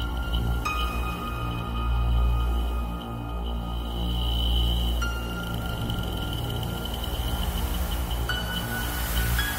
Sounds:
music

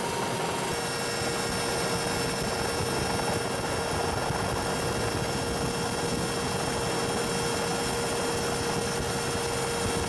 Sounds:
vehicle

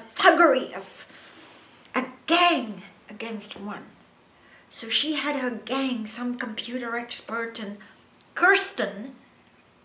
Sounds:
speech

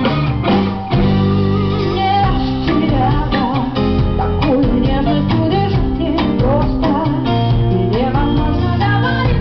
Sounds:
music
female singing

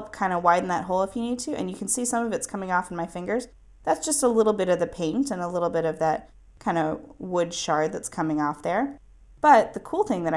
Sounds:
speech

